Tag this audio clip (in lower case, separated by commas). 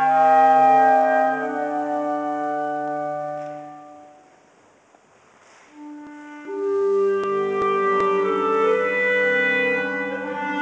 playing clarinet, clarinet